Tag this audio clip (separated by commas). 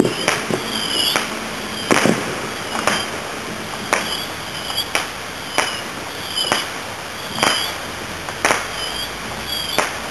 Fireworks